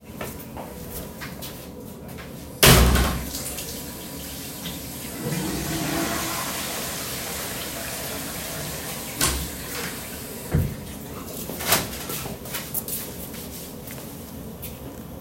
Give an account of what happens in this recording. I opened and closed the door and turned on the tap. As soon as water is running I flushed the toilet and opened the door again.